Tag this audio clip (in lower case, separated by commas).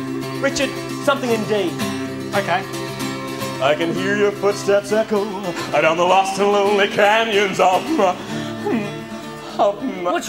speech, music